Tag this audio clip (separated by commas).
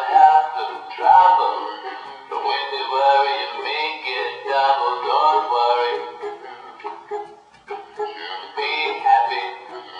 Synthetic singing, Music